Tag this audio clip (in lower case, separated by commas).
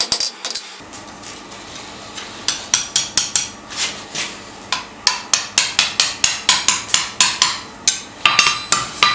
inside a small room, tools